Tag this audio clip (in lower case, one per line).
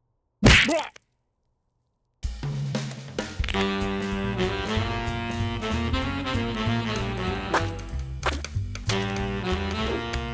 brass instrument
whack